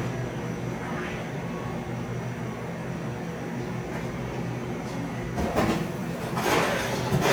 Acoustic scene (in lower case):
cafe